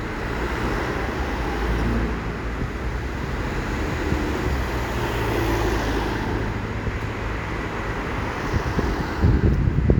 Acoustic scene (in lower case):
street